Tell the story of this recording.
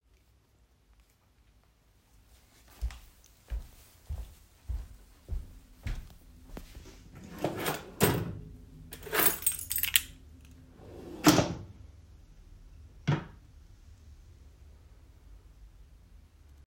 I walked through the hallway, opened the drawer, picked my keys and then closed it again.